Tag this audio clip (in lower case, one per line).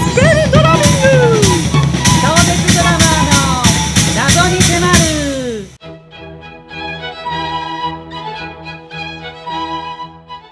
drum kit
music
musical instrument
bass drum
speech
drum